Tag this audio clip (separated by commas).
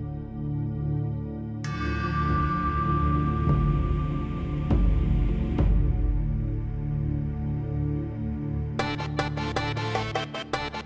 Music, Ambient music